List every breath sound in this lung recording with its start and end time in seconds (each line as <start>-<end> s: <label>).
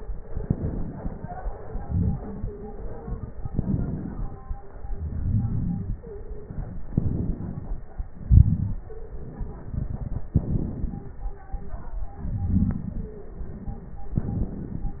0.17-1.63 s: inhalation
0.17-1.63 s: crackles
1.63-3.39 s: exhalation
1.85-3.31 s: stridor
3.39-4.85 s: inhalation
3.39-4.85 s: crackles
4.88-6.86 s: exhalation
5.99-6.52 s: stridor
6.86-8.18 s: inhalation
6.86-8.18 s: crackles
8.21-10.29 s: exhalation
8.85-9.75 s: stridor
10.25-12.18 s: inhalation
10.25-12.18 s: crackles
12.15-14.16 s: exhalation
12.99-13.44 s: stridor
14.12-15.00 s: inhalation
14.12-15.00 s: crackles